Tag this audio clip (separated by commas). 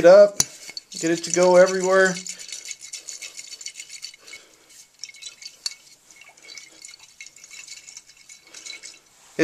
Speech